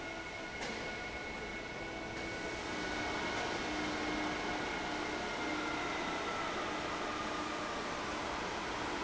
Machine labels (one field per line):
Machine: fan